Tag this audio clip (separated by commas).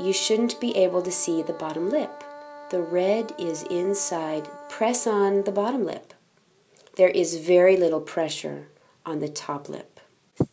Speech, Brass instrument